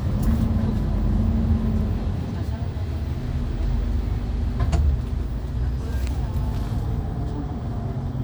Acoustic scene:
bus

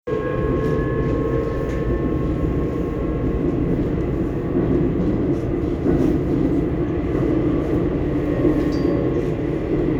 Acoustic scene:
subway train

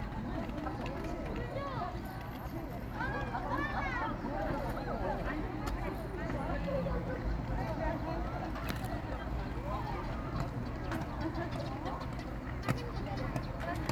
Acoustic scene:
park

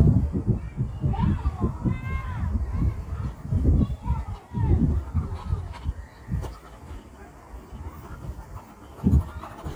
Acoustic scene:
park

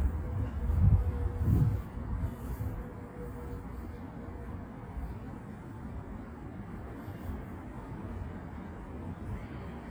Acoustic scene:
residential area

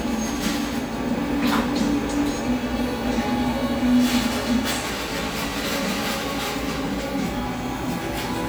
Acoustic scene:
cafe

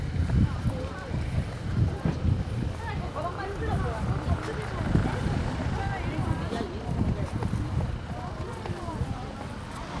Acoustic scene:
residential area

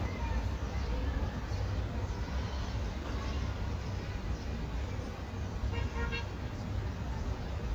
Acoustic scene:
residential area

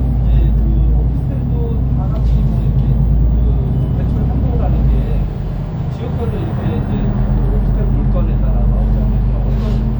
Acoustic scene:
bus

